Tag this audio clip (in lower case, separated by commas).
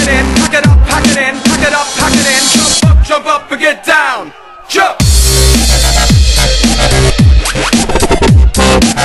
dubstep, music